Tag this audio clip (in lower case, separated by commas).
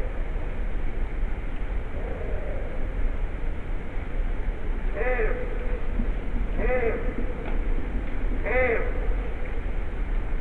outside, urban or man-made, echo